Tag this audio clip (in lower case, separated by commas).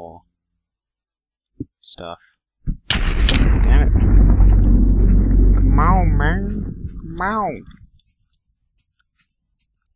speech, outside, rural or natural